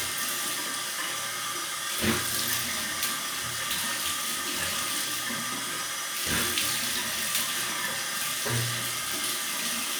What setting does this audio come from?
restroom